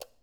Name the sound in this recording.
switch being turned off